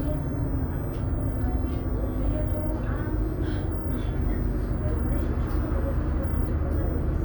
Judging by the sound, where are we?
on a bus